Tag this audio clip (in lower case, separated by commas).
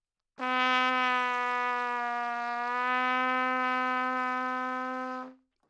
musical instrument, trumpet, brass instrument, music